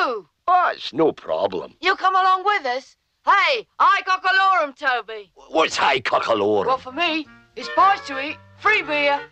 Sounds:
Speech, Music

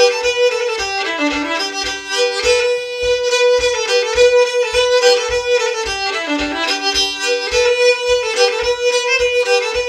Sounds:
Music, Musical instrument, Violin

